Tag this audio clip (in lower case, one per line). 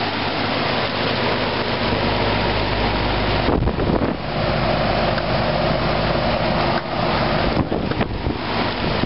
air conditioning
outside, urban or man-made